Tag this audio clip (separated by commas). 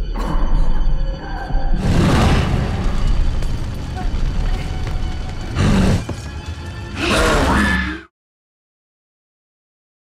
Speech, Music